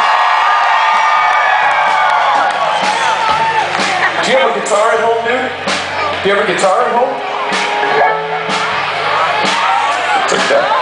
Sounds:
musical instrument
music
speech

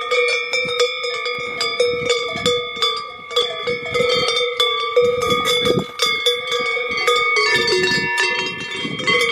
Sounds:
bovinae cowbell

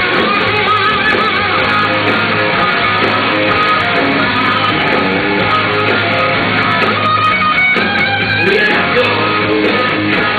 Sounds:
music

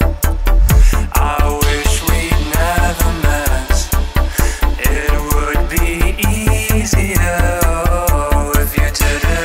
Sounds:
music
dubstep
electronic music

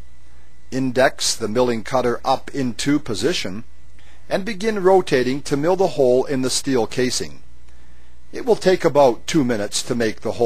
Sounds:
speech

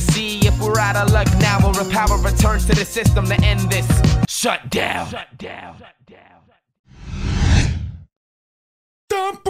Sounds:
rapping
music

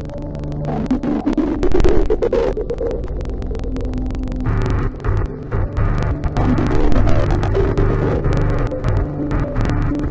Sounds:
hum
mains hum

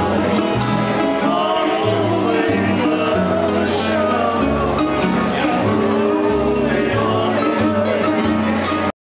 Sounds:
music

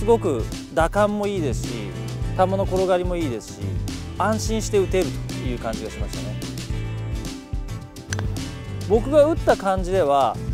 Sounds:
speech
music

